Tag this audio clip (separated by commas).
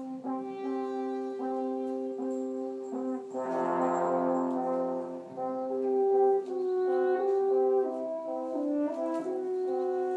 French horn, Brass instrument